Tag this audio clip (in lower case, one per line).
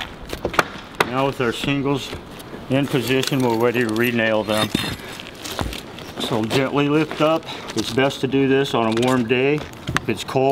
speech
outside, rural or natural